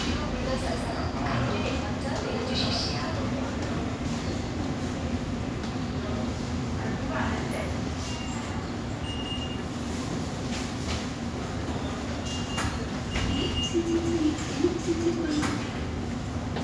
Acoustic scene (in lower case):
subway station